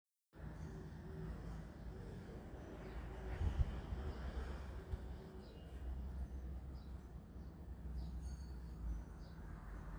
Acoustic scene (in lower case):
residential area